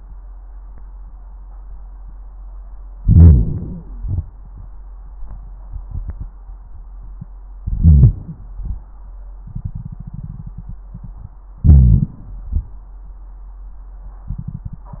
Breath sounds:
2.98-4.00 s: inhalation
2.98-4.00 s: crackles
4.01-4.46 s: exhalation
7.60-8.59 s: inhalation
7.60-8.59 s: crackles
8.59-9.03 s: exhalation
8.61-9.05 s: crackles
11.61-12.51 s: inhalation
11.61-12.51 s: crackles
12.54-12.99 s: exhalation
12.54-12.99 s: crackles

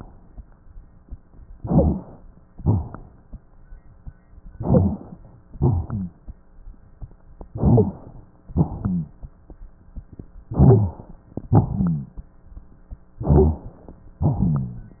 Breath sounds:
1.50-2.18 s: inhalation
1.54-2.03 s: wheeze
2.56-3.25 s: exhalation
2.56-3.25 s: rhonchi
4.57-5.20 s: inhalation
4.57-5.20 s: wheeze
5.50-6.21 s: exhalation
5.50-6.21 s: rhonchi
7.53-8.16 s: inhalation
7.53-8.16 s: wheeze
8.50-9.20 s: exhalation
8.50-9.20 s: rhonchi
10.47-11.14 s: inhalation
10.47-11.14 s: wheeze
11.48-12.22 s: exhalation
11.48-12.22 s: rhonchi
13.19-13.83 s: inhalation
13.19-13.83 s: wheeze
14.29-15.00 s: exhalation
14.29-15.00 s: rhonchi

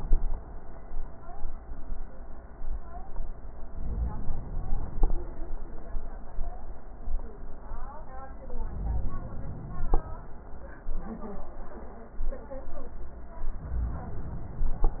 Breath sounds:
3.67-5.07 s: inhalation
8.57-9.96 s: inhalation

